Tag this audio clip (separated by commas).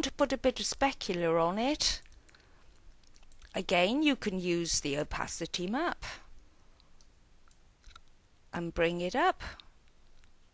Speech, inside a small room